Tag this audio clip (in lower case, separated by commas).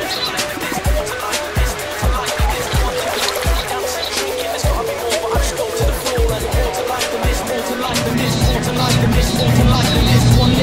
music